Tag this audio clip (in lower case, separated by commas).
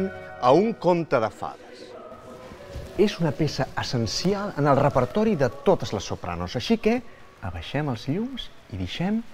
speech